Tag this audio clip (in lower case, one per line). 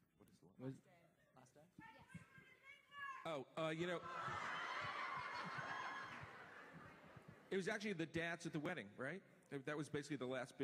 speech